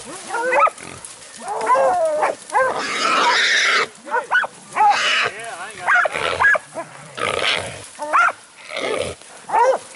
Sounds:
dog baying

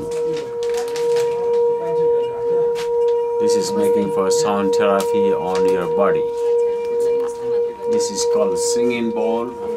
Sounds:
singing bowl

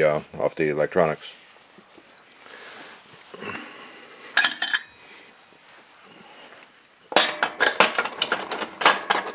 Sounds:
Speech, inside a large room or hall

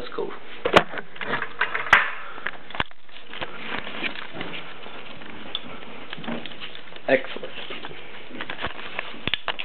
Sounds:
Speech, Sniff

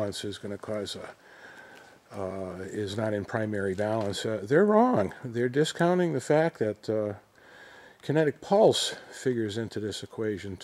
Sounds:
Speech

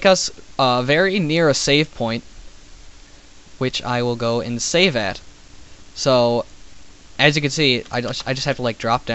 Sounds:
Speech

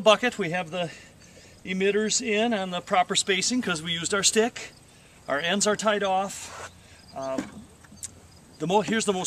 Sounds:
Speech

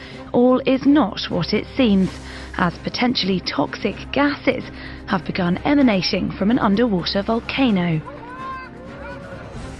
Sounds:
Speech, Music

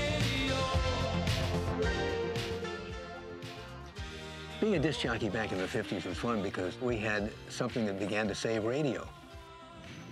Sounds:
Speech, Music

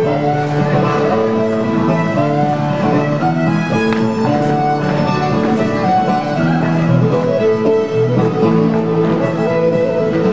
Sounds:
Music, Harmonic

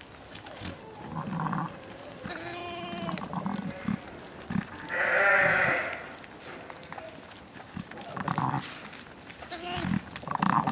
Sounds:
Animal, Goat, Sheep, livestock

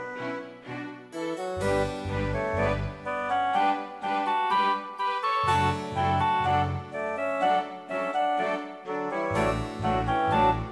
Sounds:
Music

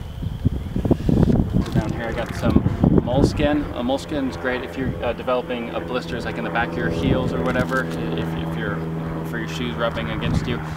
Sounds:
Speech, outside, rural or natural

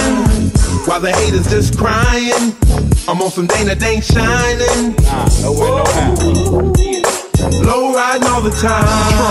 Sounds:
Music

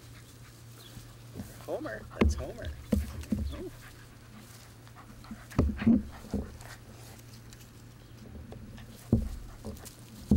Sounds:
Dog, Domestic animals, Animal, outside, rural or natural

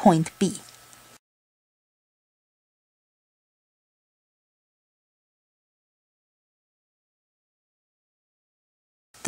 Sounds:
Speech

